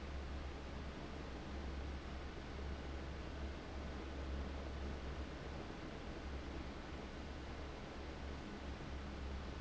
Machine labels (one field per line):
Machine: fan